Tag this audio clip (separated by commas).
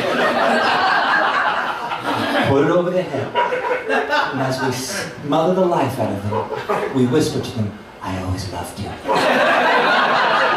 Speech